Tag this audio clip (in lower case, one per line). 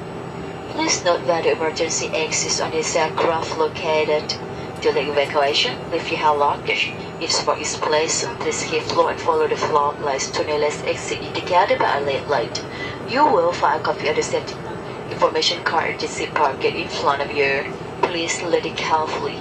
vehicle
aircraft